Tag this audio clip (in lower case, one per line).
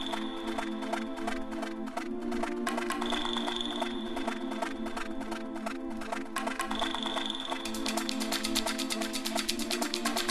music